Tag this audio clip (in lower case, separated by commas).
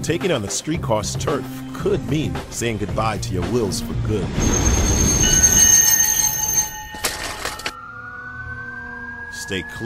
music, speech, vehicle